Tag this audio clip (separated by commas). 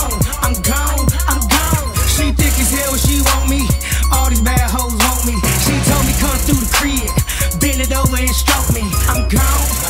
Rhythm and blues, Music